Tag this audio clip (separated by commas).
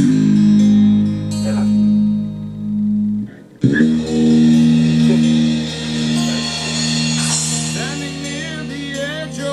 Bass guitar, playing bass guitar, Musical instrument, Speech, Guitar, Plucked string instrument, Music, Acoustic guitar